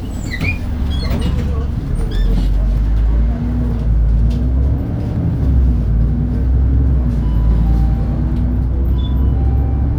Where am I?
on a bus